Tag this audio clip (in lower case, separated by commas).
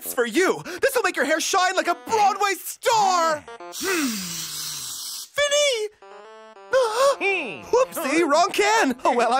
music, speech